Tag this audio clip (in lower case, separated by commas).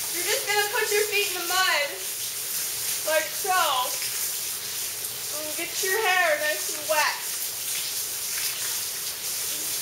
speech, rain on surface